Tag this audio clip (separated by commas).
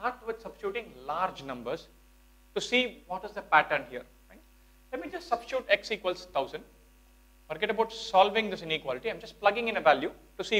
Speech